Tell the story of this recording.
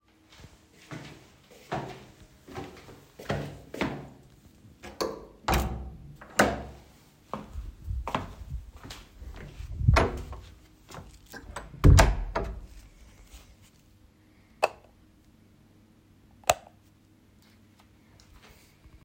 I walk toward my room, open the door, close it, and turn on the light.